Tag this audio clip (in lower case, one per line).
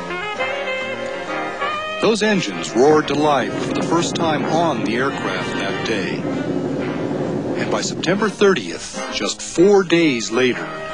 music
speech